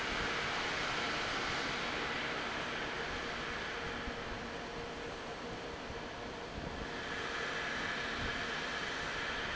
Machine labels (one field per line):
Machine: fan